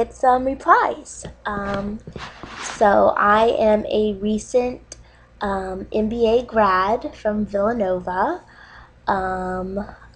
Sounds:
speech

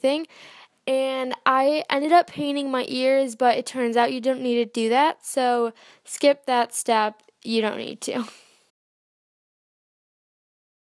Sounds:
speech

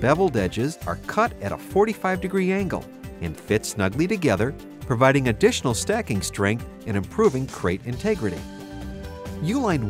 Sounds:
speech
music

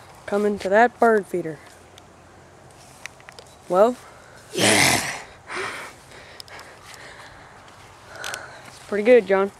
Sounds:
speech

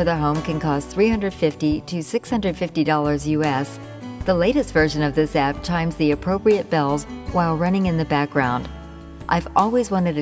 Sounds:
speech
music

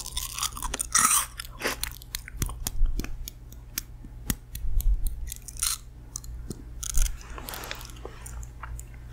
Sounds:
people eating apple

